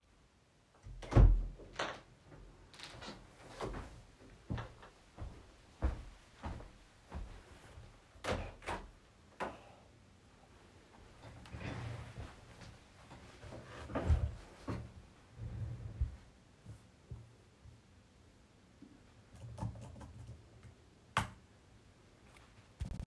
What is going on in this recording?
I open my office door, walk to the window and open it, sit down at my desk, and type my password to log in to my laptop.